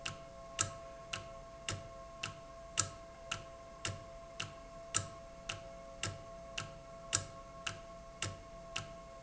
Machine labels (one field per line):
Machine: valve